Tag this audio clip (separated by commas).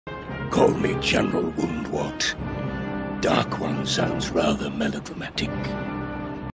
Music, Speech